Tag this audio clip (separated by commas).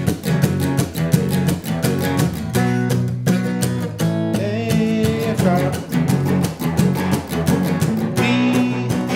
Musical instrument, Blues, Guitar, Singing, Plucked string instrument, Music